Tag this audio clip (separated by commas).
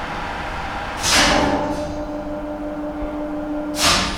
Mechanisms